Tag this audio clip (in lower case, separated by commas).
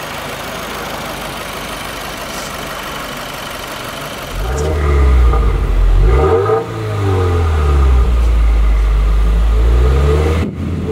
accelerating, vehicle, vroom